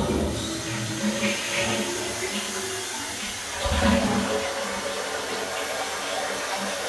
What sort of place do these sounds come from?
restroom